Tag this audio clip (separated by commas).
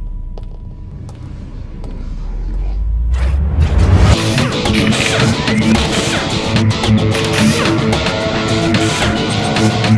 Tools, Music, Speech